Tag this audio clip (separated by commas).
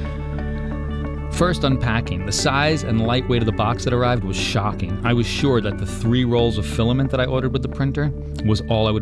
Music, Speech